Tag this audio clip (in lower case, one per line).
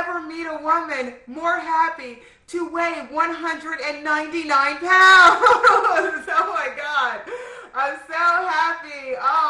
speech